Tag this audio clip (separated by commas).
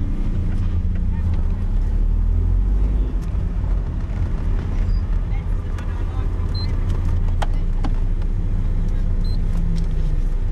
Speech, Vehicle, Car